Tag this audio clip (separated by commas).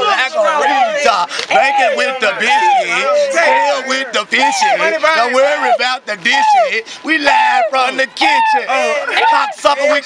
Speech